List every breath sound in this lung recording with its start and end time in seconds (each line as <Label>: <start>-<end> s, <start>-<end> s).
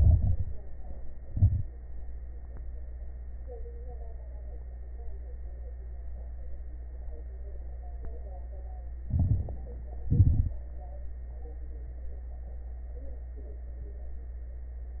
Inhalation: 0.00-0.59 s, 9.09-9.69 s
Exhalation: 1.22-1.81 s, 10.04-10.63 s
Crackles: 0.00-0.59 s, 1.22-1.81 s, 9.09-9.69 s, 10.04-10.63 s